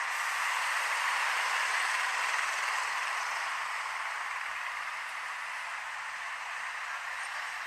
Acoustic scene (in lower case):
street